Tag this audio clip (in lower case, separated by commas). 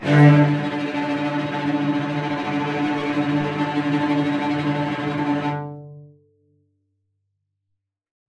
music, musical instrument, bowed string instrument